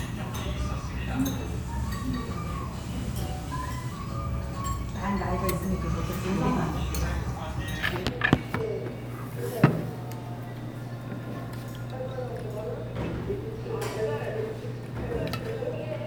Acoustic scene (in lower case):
restaurant